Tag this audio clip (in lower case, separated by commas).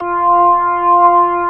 organ, music, keyboard (musical), musical instrument